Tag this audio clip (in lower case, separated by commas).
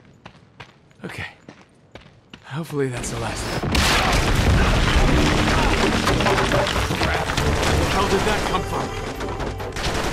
boom, music, speech